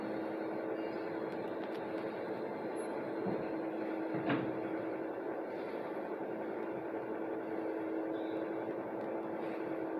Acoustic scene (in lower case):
bus